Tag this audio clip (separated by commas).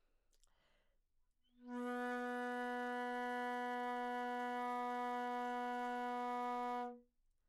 Wind instrument, Music, Musical instrument